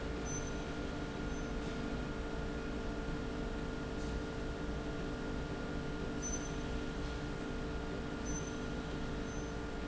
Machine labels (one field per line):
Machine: slide rail